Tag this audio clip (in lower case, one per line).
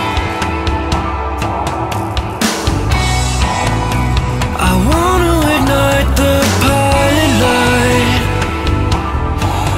music